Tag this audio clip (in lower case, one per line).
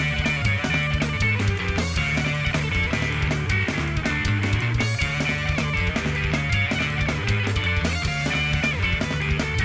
music